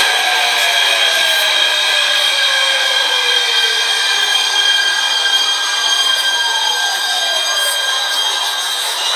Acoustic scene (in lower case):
subway station